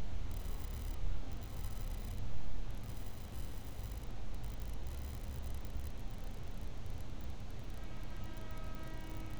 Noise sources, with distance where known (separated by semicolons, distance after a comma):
background noise